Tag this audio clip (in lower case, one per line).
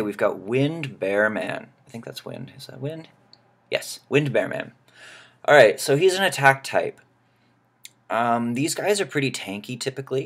speech